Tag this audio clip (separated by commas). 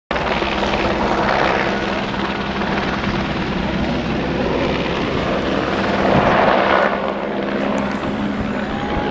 Helicopter, Vehicle